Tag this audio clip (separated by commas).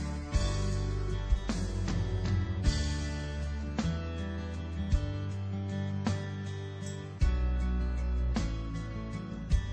Music